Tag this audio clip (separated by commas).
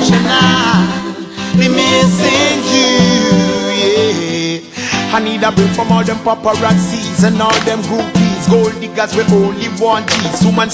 Maraca, Music